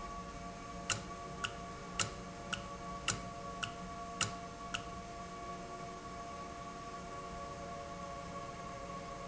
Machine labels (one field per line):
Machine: valve